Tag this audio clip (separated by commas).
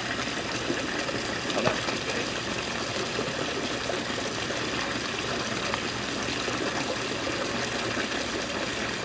Gush, Speech